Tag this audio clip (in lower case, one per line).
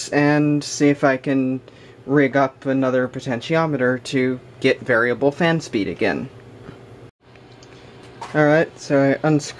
speech